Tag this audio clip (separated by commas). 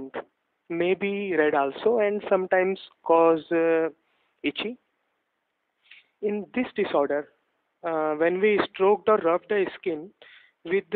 Speech